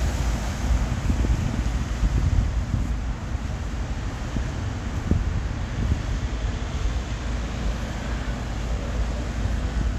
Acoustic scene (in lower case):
street